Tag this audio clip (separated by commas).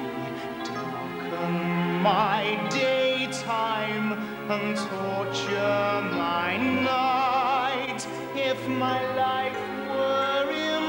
Music